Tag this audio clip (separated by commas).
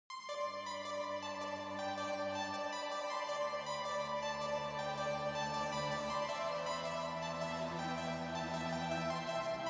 Music